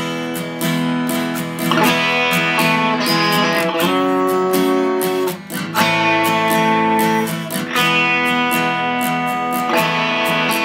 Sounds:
musical instrument
plucked string instrument
acoustic guitar
electric guitar
music
strum
guitar
playing electric guitar

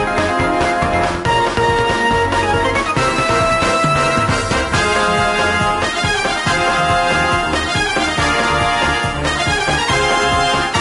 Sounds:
music

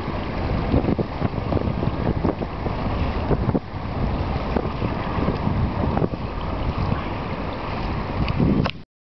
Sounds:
kayak rowing
kayak
boat

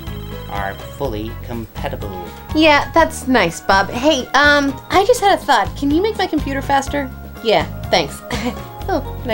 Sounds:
techno
music
speech

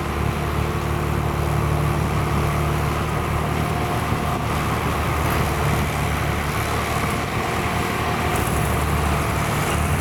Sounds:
truck
vehicle

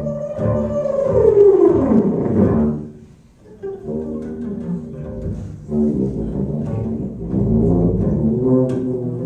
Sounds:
pizzicato
cello

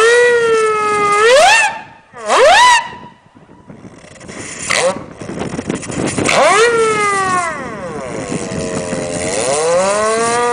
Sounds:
siren

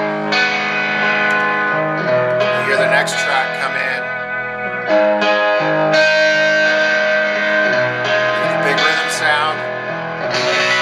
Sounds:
speech
music

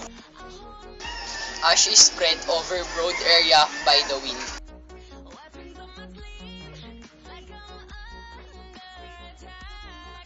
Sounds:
speech
music

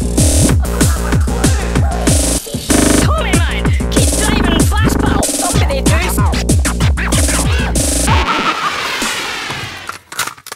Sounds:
music

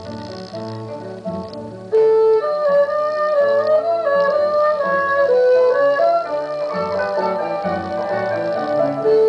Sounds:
playing erhu

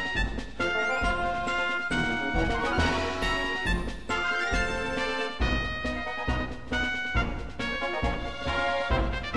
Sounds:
music

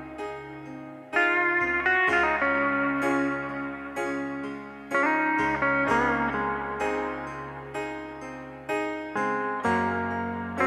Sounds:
music

